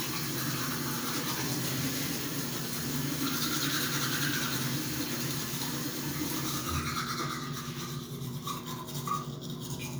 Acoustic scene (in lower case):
restroom